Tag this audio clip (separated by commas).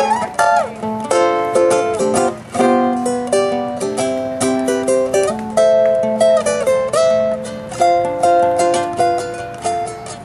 Guitar, Plucked string instrument, Musical instrument, Music, Ukulele